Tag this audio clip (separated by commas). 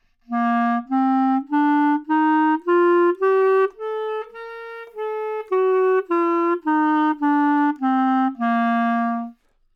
Musical instrument, Wind instrument, Music